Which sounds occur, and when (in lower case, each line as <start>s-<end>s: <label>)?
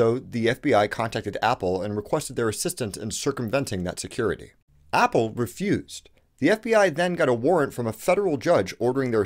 0.0s-4.6s: background noise
0.0s-4.5s: man speaking
4.9s-6.0s: man speaking
6.0s-6.1s: tick
6.1s-6.2s: tick
6.4s-9.2s: man speaking